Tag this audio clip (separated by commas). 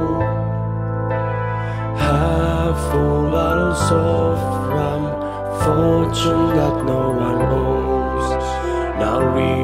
Music